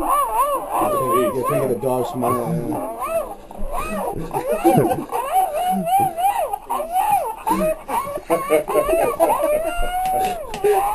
A dog is whining, and adult males and females are speaking and laughing